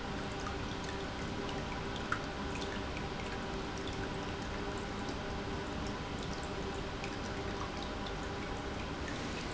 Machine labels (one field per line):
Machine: pump